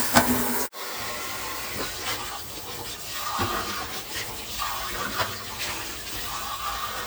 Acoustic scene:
kitchen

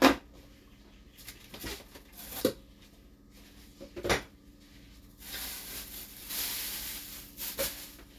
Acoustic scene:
kitchen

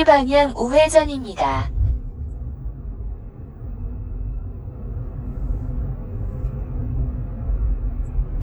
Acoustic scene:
car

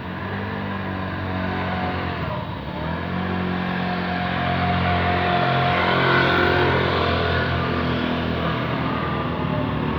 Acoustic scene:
residential area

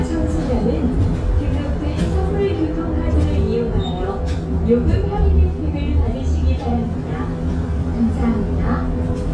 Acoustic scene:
bus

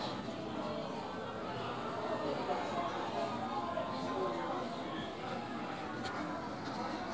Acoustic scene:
crowded indoor space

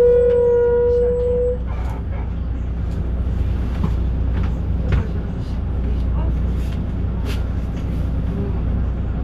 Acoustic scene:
bus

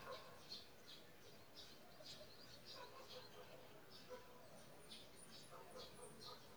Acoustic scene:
park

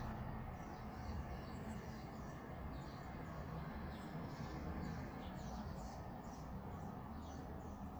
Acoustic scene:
residential area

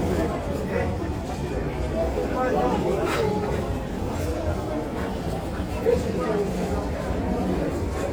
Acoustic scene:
crowded indoor space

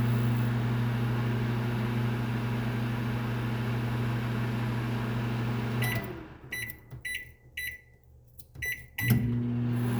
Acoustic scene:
kitchen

